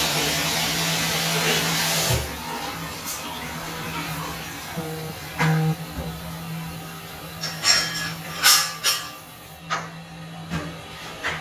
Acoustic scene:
restroom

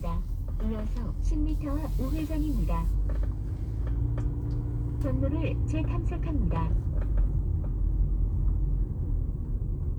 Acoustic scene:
car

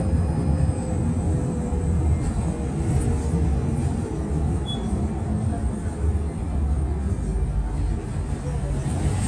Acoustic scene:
bus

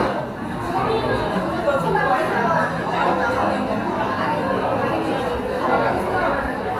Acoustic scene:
cafe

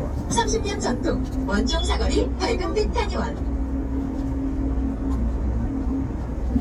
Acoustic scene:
bus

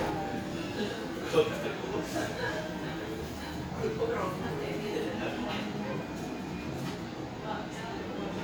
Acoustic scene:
cafe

